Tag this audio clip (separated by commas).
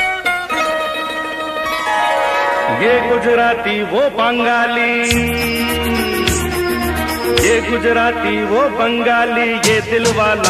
Singing